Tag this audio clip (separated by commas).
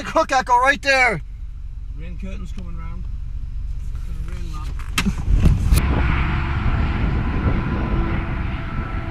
Speech